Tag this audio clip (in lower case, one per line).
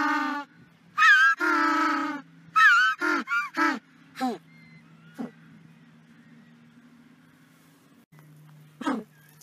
penguins braying